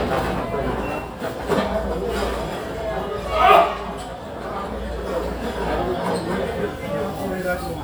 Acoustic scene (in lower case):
crowded indoor space